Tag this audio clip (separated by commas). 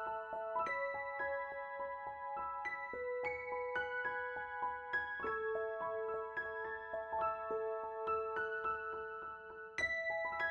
Music